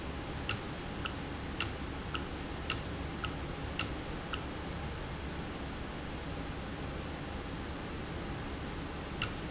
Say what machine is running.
valve